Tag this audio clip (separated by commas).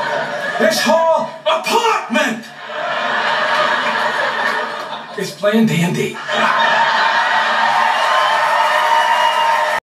Speech